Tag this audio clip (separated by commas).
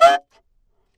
woodwind instrument, Musical instrument, Music